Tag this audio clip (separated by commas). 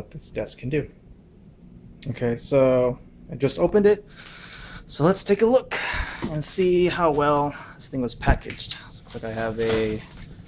Speech